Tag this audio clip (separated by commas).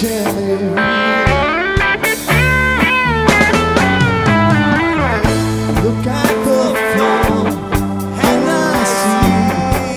Musical instrument, Plucked string instrument, Music, Strum, Guitar